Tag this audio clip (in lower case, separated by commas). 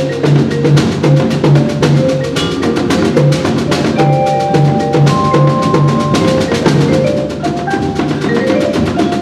percussion, music, musical instrument, drum